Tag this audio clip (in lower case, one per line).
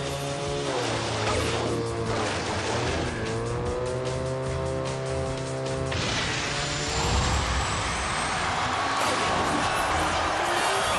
music
vehicle